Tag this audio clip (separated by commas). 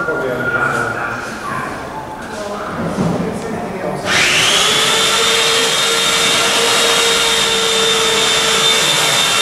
Speech